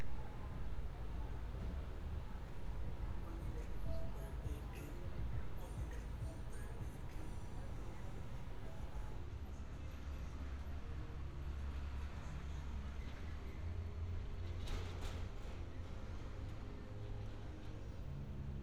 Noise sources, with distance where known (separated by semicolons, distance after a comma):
music from an unclear source